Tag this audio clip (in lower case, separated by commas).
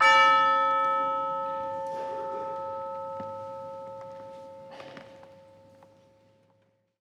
musical instrument, music, percussion